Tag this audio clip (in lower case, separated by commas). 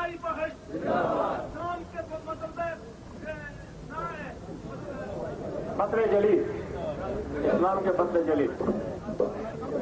speech, monologue, male speech